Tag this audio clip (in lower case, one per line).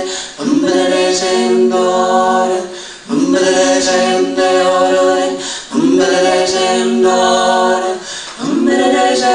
vocal music
singing